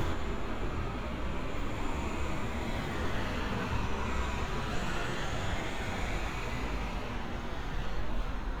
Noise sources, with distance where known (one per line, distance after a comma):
medium-sounding engine, near